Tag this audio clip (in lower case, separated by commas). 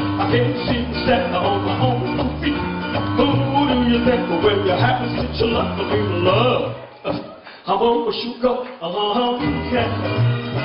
music, male singing